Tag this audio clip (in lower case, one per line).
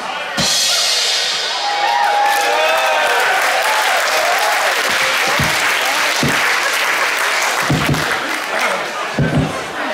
music
speech